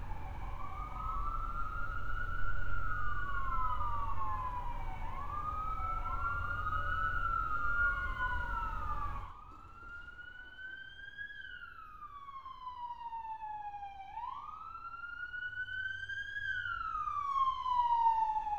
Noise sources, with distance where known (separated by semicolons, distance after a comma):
siren